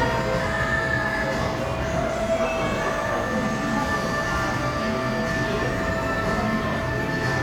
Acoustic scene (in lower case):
cafe